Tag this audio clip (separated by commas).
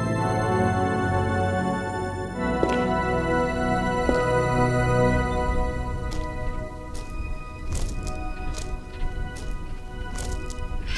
Music